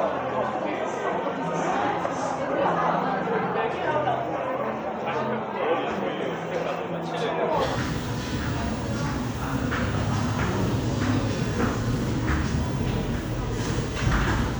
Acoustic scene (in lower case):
cafe